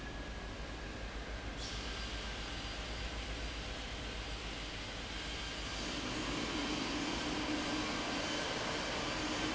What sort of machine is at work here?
fan